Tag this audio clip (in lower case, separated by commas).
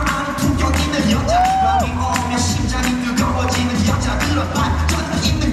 music